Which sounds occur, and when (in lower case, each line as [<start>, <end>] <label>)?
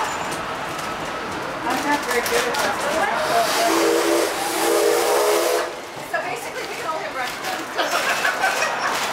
[0.00, 0.09] generic impact sounds
[0.00, 9.12] train
[0.18, 0.36] generic impact sounds
[0.72, 0.83] generic impact sounds
[1.31, 1.36] generic impact sounds
[1.64, 2.73] female speech
[1.65, 9.12] conversation
[1.66, 2.69] generic impact sounds
[2.80, 2.91] generic impact sounds
[2.83, 3.84] human voice
[3.63, 4.33] steam whistle
[4.45, 5.67] steam whistle
[6.10, 7.27] female speech
[6.62, 6.71] generic impact sounds
[7.24, 7.58] generic impact sounds
[7.72, 8.87] giggle
[7.85, 8.26] generic impact sounds
[8.45, 8.70] generic impact sounds
[8.85, 9.12] generic impact sounds